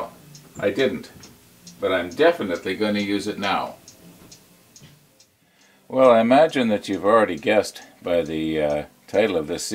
Man speaking as there is a ticking noise in the background